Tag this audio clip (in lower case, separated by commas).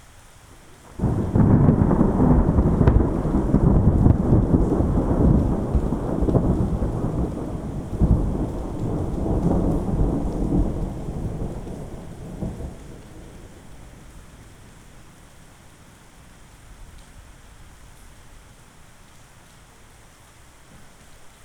thunderstorm, thunder, water, rain